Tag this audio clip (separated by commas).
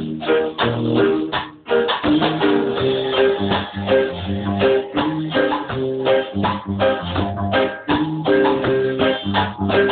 Musical instrument, Music, Maraca, Drum kit, Drum